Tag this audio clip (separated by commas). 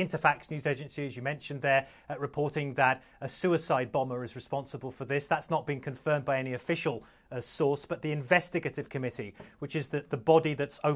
Speech